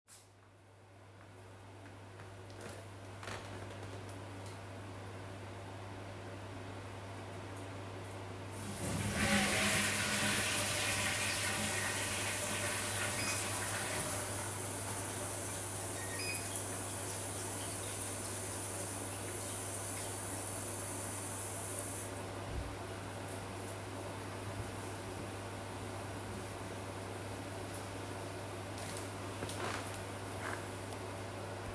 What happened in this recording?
I was warming up a meal in the microwave, during which I went to the bathroom, flushed the toilet, and washed my hands. The food finished warming up while I was washing my hands.